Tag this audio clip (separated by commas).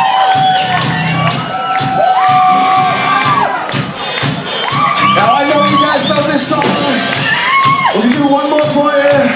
Crowd, Music, Speech